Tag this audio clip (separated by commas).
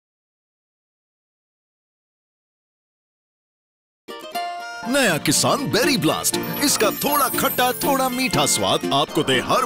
Speech, Music